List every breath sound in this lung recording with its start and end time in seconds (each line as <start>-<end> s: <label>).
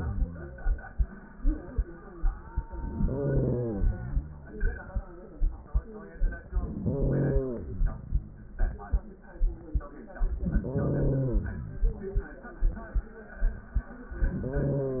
2.80-4.24 s: inhalation
6.46-7.90 s: inhalation
10.26-11.66 s: inhalation
14.14-15.00 s: inhalation